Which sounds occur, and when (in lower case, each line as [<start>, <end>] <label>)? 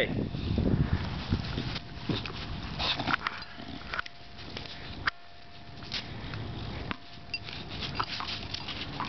[0.00, 1.72] wind noise (microphone)
[0.00, 9.05] background noise
[1.60, 1.78] generic impact sounds
[2.04, 2.46] generic impact sounds
[2.73, 3.41] pant (dog)
[2.73, 3.45] generic impact sounds
[3.82, 4.03] generic impact sounds
[4.99, 5.20] generic impact sounds
[5.83, 6.01] generic impact sounds
[6.86, 6.98] bouncing
[7.28, 7.41] bleep
[7.94, 9.05] bouncing